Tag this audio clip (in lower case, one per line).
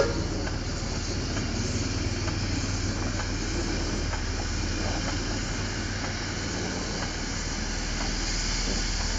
rail transport
railroad car
vehicle
train